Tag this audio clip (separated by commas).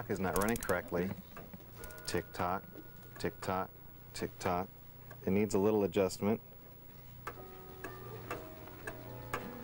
Tick, Speech